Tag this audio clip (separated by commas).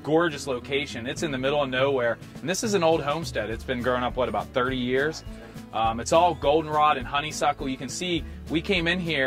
Music, Speech